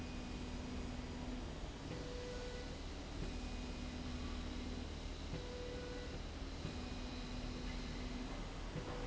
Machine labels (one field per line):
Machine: slide rail